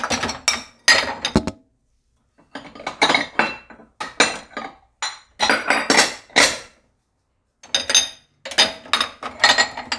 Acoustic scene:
kitchen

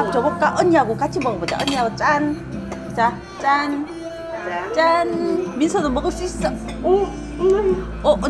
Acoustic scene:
restaurant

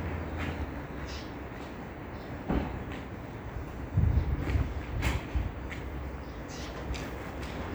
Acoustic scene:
residential area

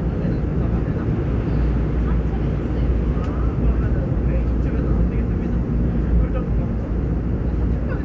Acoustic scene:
subway train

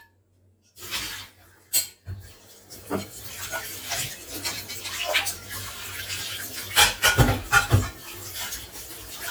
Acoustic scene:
kitchen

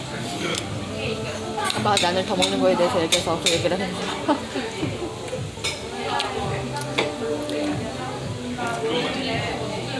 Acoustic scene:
restaurant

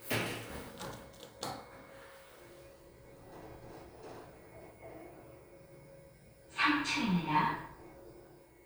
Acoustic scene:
elevator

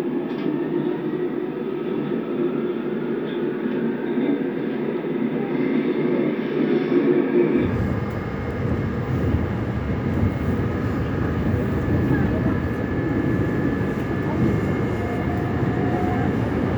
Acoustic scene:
subway train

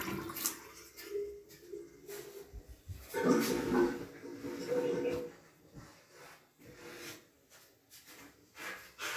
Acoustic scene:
restroom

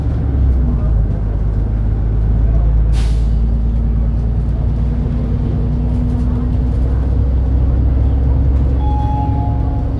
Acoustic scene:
bus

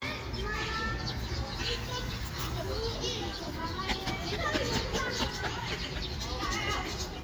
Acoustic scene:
park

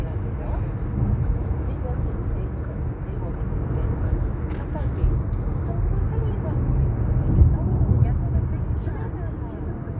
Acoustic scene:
car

